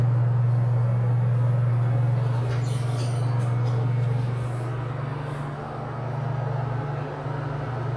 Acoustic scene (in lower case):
elevator